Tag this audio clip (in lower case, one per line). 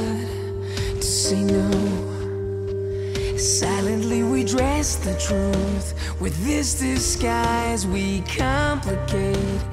music